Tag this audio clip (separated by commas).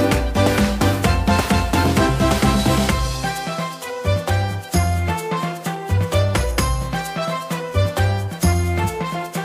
Music